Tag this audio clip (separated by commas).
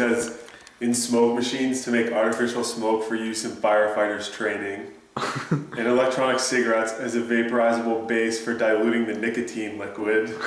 Speech